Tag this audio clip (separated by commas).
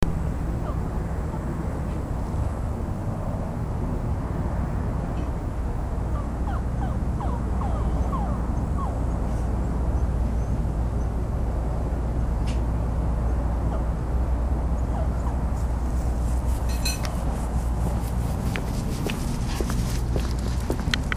Domestic animals, Dog, Animal